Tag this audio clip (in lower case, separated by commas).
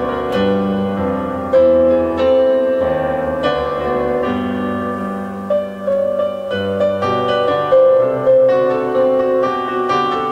harpsichord, music